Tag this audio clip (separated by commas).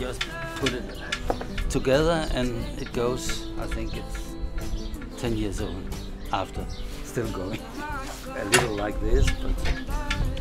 Speech, Music